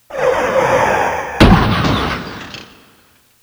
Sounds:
Motor vehicle (road), Vehicle, Car

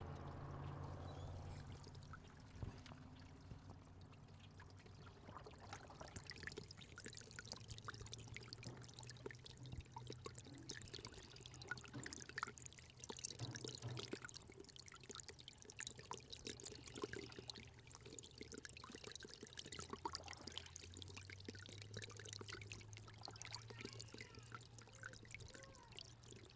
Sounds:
Animal, Knock, Pour, Trickle, Traffic noise, Wild animals, Motor vehicle (road), Bird vocalization, Bird, Liquid, Speech, Water, Human voice, Vehicle, home sounds, kid speaking, Stream, Door

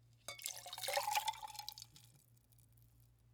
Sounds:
Liquid

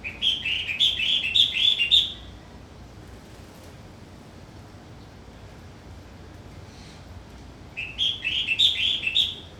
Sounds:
Bird, Wild animals, Animal

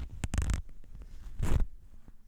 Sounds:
home sounds, Zipper (clothing)

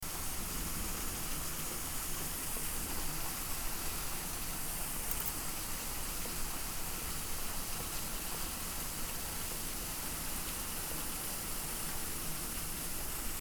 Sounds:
Water, Rain

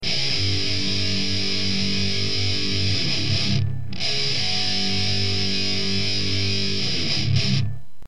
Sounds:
Guitar, Plucked string instrument, Musical instrument, Music

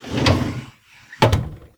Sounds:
Drawer open or close, Domestic sounds

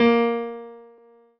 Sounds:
Keyboard (musical), Musical instrument, Music, Piano

